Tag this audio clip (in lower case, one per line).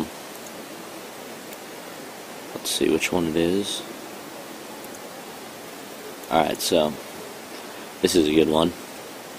speech